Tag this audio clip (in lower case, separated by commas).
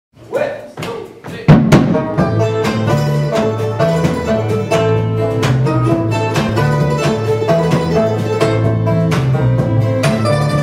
speech, tap, music